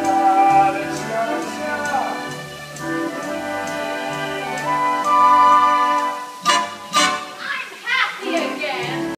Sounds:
music, female singing, male singing

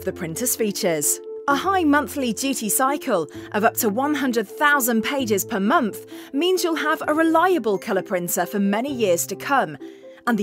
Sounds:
speech, music

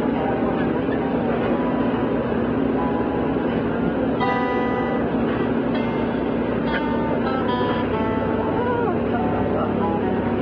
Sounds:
speech, vehicle, music, bus

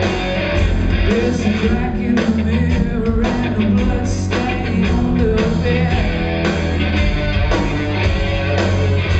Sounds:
music, dance music

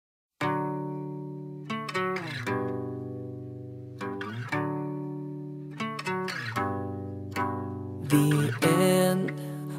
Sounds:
singing, music

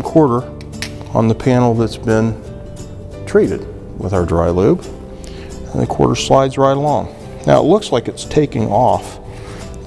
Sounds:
music, speech

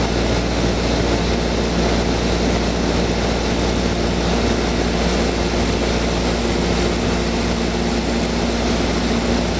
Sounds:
propeller, outside, urban or man-made

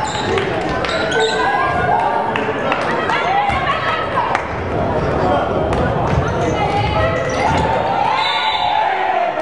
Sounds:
basketball bounce, speech, inside a public space

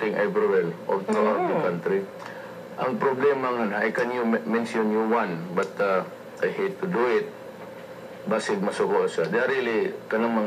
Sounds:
speech

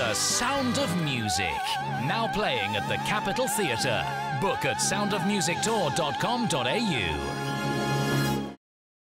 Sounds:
music, exciting music, speech

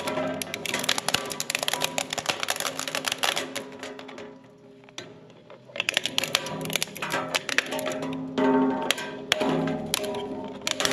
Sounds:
plastic bottle crushing

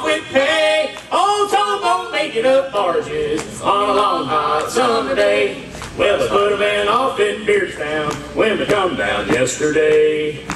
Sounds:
song, musical instrument, bowed string instrument, music, singing, double bass

